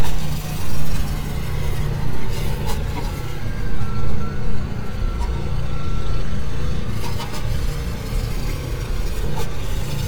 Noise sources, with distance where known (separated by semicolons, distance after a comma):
engine of unclear size, near; reverse beeper